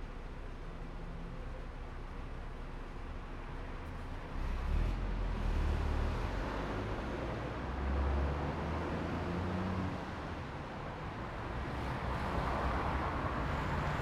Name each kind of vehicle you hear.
bus, car